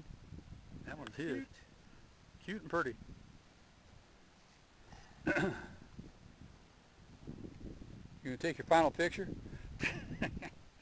Rustling noises and wind breeze as two people making conversation